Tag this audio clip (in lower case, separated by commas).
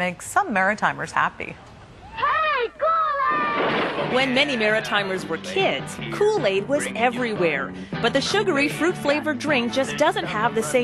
music, speech